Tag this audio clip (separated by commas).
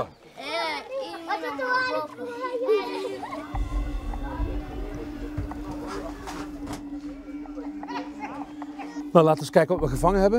Speech